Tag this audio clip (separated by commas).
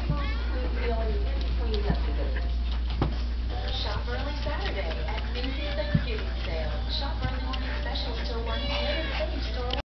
Meow, Cat, pets, Speech, Animal